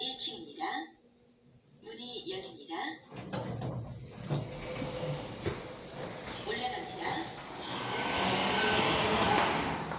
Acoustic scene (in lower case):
elevator